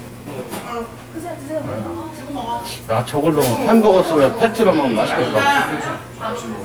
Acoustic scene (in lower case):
crowded indoor space